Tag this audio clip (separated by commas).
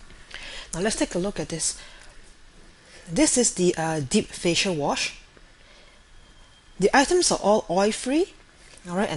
Speech